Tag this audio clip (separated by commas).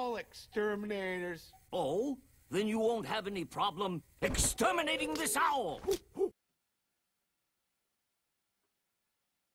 Speech